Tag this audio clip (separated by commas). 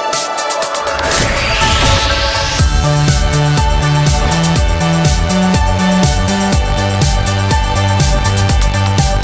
Music